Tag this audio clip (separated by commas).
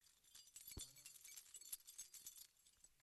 Keys jangling, Domestic sounds